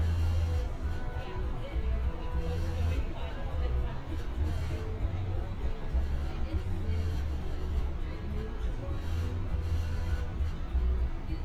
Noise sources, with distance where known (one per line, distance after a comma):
music from an unclear source
unidentified human voice